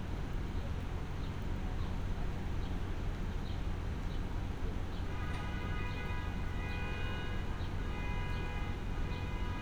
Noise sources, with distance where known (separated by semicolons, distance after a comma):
car alarm